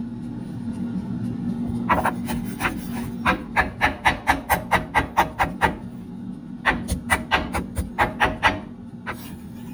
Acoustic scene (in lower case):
kitchen